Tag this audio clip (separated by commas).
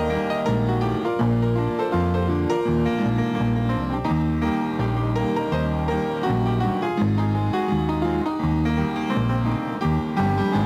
Music